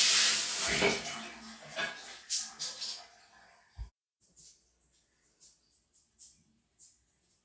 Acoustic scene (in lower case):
restroom